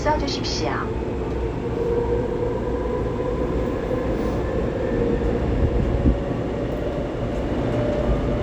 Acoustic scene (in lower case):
subway train